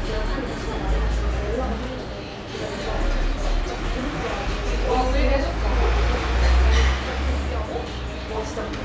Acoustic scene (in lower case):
cafe